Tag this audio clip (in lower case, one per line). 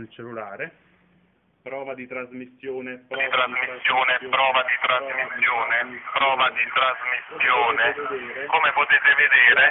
speech
radio